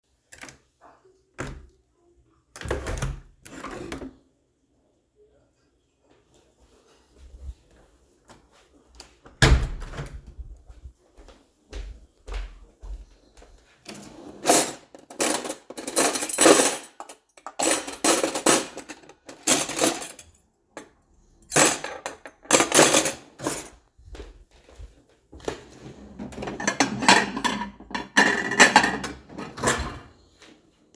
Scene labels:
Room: kitchen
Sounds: window (more than once), footsteps, wardrobe or drawer, cutlery and dishes

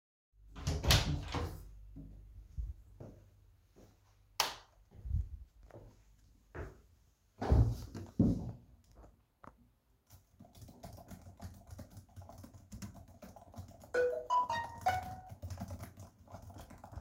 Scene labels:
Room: office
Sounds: door, light switch, footsteps, keyboard typing, phone ringing

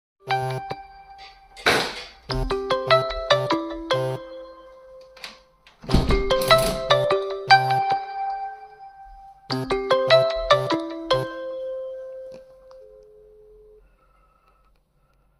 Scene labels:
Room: office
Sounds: phone ringing, window

